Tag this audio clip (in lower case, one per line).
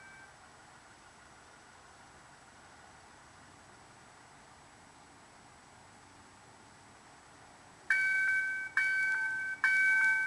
outside, urban or man-made